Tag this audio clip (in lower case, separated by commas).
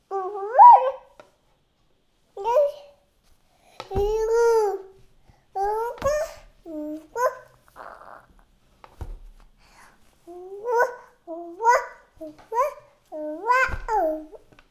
speech, human voice